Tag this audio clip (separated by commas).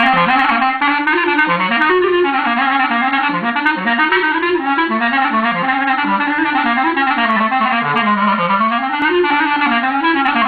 playing clarinet